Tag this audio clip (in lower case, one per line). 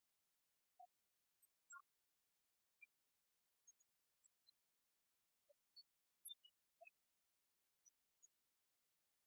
funny music
music